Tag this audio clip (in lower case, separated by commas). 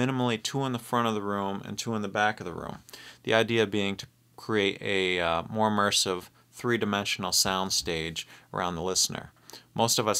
speech